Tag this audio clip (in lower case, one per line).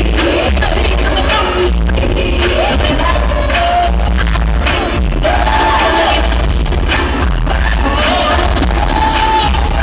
music